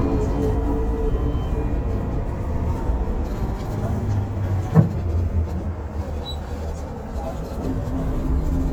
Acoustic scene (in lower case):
bus